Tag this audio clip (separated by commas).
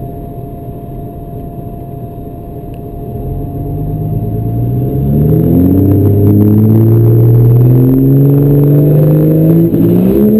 Car, Vehicle